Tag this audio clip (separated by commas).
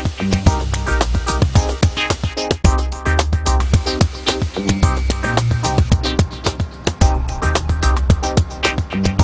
Hum